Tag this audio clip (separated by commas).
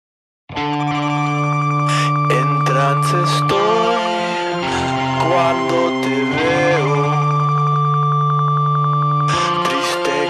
Singing, Music